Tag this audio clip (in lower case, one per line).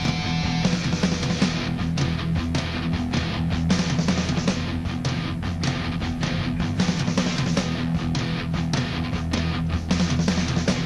music